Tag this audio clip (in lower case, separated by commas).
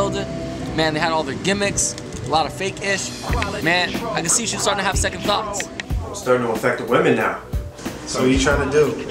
pop music, music, speech